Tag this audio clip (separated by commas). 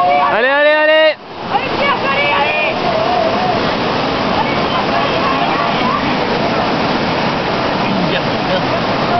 Speech